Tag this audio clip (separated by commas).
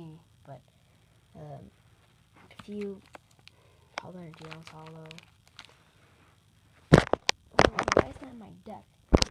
Speech